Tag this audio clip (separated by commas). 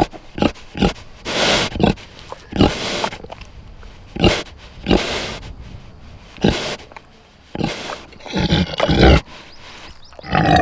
pig oinking